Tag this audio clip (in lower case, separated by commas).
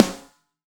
musical instrument, drum, music, snare drum, percussion